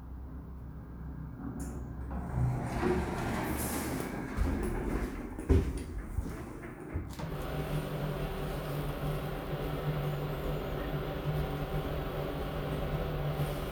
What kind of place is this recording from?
elevator